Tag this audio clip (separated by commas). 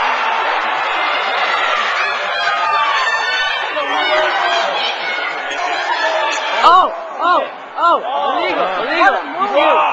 Speech, inside a large room or hall